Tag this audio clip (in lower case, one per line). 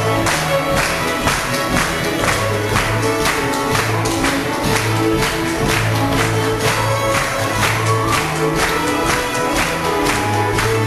musical instrument
fiddle
music